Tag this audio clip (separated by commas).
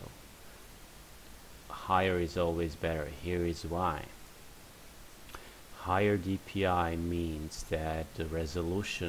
Speech